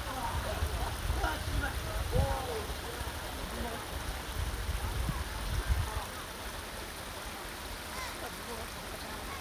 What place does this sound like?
park